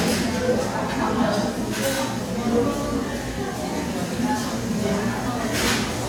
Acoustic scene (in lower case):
crowded indoor space